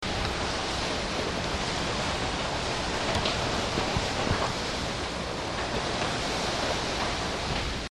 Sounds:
Ocean, Vehicle, Water, Water vehicle

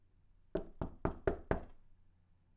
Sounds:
Door, Wood, home sounds, Knock

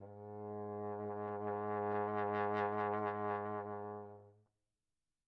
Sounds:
Brass instrument, Music, Musical instrument

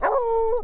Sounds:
Domestic animals, Animal, Dog

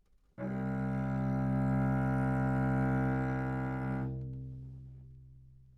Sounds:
Music, Musical instrument, Bowed string instrument

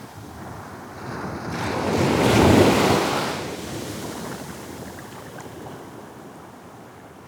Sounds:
surf, Water, Ocean

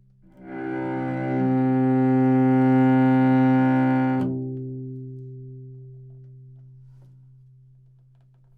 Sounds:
Musical instrument, Music, Bowed string instrument

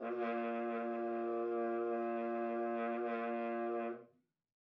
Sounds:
Musical instrument, Brass instrument, Music

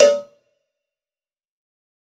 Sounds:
Cowbell, Bell

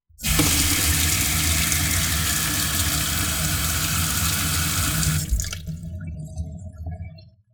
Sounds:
faucet, Sink (filling or washing), home sounds

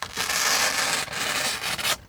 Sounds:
Tearing

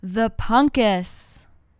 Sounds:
Human voice, Female speech, Speech

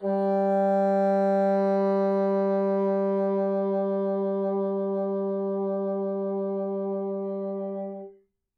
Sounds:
Music, Musical instrument, woodwind instrument

